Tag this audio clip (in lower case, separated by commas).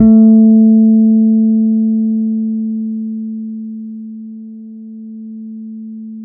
bass guitar, plucked string instrument, guitar, music, musical instrument